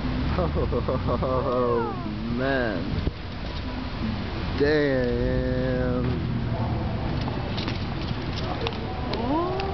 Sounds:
vehicle
speech
bicycle

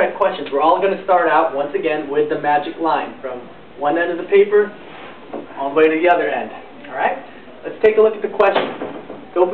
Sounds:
speech

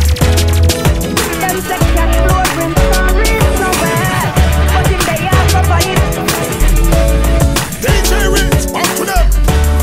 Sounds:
music

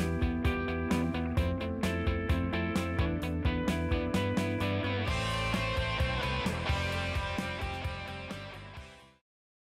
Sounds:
music

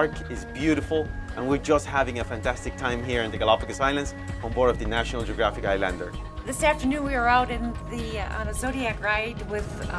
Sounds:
speech
music

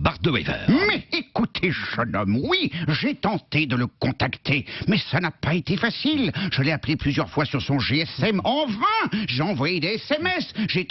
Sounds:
speech

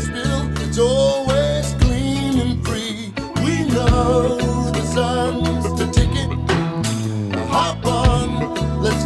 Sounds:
vocal music
music
rhythm and blues

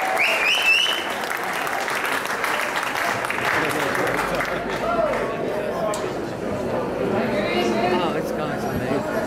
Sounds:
speech

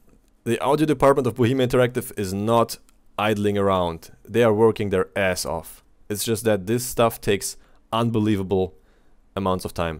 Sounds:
speech

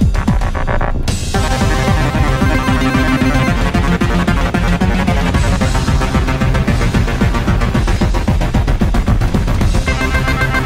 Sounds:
music
musical instrument

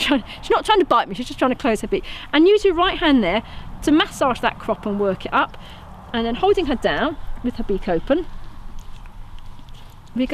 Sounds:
speech

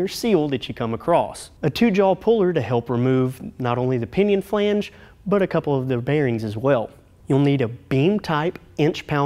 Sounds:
speech

